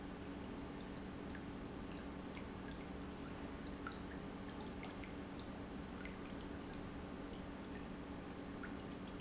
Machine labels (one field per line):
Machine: pump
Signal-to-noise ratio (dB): 6 dB